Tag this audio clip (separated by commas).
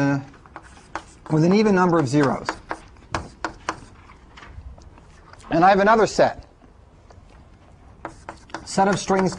Speech